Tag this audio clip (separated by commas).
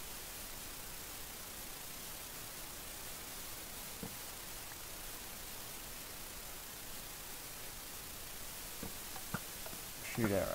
Silence